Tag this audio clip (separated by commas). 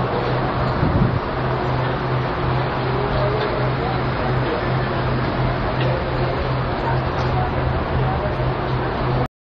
Vehicle, Speech